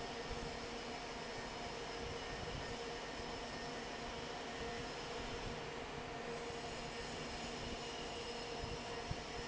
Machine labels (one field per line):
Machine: fan